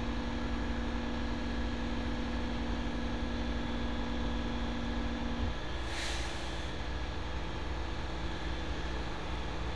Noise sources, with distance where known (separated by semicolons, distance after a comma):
large-sounding engine, near